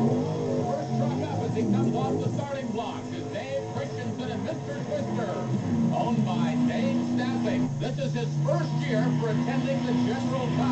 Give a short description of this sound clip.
Race car speeding while commentator speaks